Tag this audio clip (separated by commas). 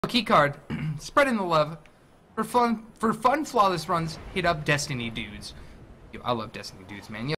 Speech